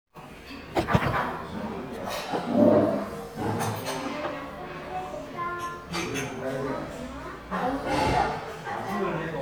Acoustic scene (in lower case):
crowded indoor space